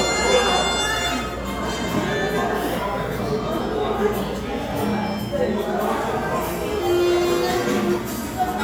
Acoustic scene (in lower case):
cafe